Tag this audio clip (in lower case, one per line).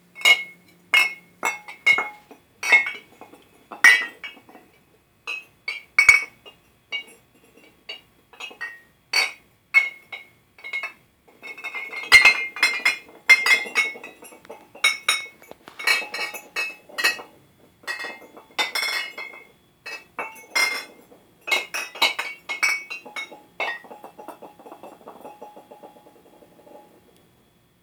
chink
glass